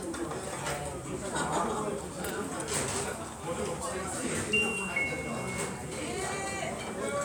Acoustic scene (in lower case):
restaurant